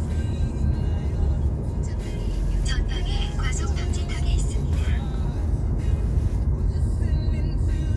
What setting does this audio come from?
car